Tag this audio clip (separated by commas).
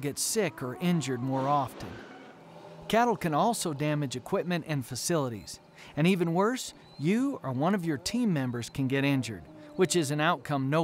Speech